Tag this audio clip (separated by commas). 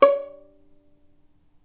Musical instrument, Bowed string instrument, Music